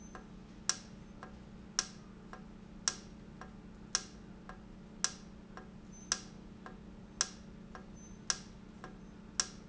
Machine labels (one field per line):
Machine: valve